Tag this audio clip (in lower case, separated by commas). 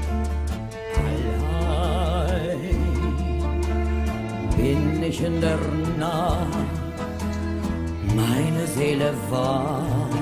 music